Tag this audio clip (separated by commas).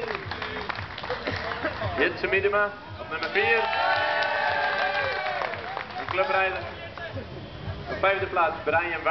Speech